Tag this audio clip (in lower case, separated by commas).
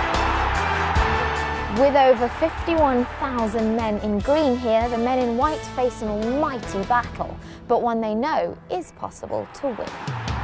music, speech